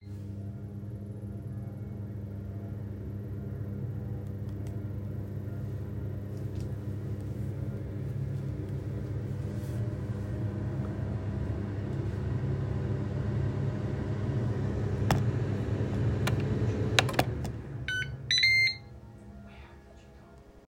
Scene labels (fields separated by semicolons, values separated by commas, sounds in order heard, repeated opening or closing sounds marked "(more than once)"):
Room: kitchen; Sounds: microwave